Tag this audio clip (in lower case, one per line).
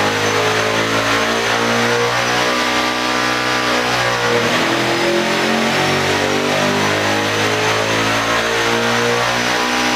engine
heavy engine (low frequency)